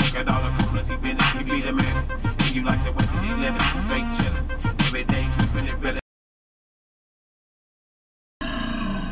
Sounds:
Music

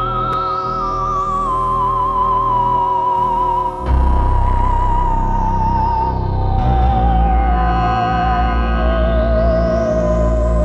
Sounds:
playing theremin

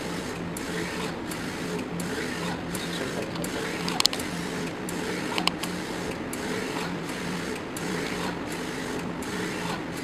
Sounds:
Printer

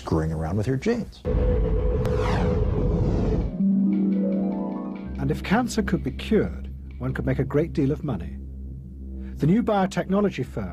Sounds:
Vibraphone

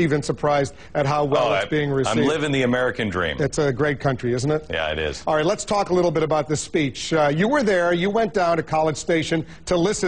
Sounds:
man speaking, Speech, Conversation

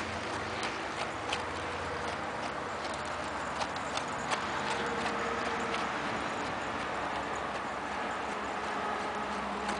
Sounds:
Clip-clop, Animal, Horse

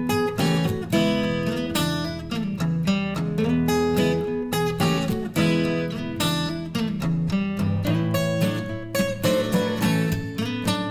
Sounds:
Music

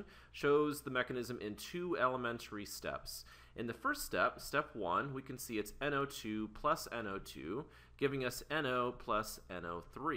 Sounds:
Speech

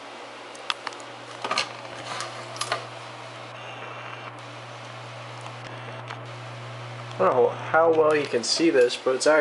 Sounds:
inside a small room, Speech

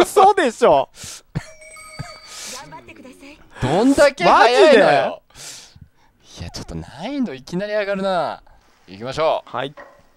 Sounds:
mosquito buzzing

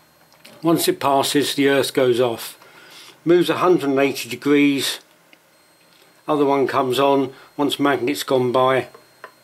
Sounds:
Speech

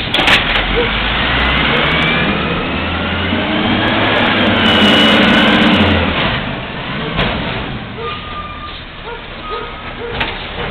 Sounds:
Truck, Vehicle

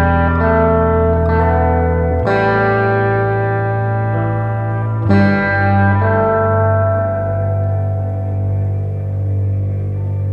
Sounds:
Music

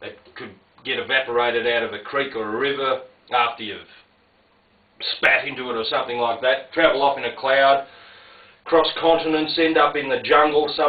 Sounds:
Speech

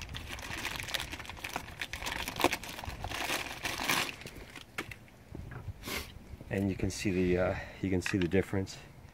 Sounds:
Speech, Crumpling

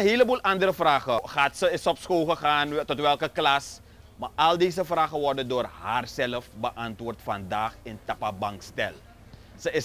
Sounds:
Speech

